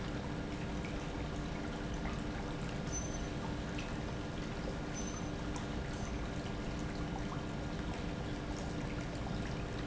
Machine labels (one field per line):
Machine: pump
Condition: normal